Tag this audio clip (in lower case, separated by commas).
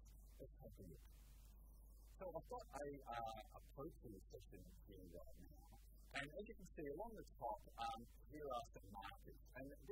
speech